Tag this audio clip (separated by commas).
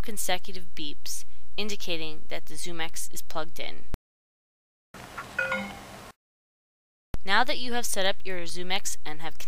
Speech